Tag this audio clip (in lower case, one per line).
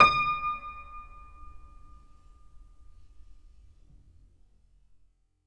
music
keyboard (musical)
piano
musical instrument